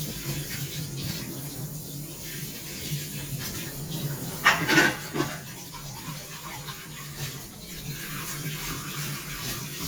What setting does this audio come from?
kitchen